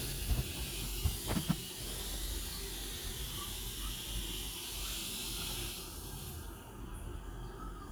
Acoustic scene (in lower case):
restroom